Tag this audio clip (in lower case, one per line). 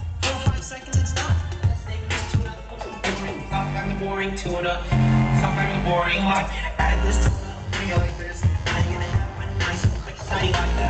music